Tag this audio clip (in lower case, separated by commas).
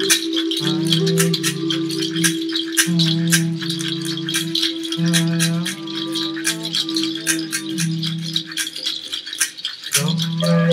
music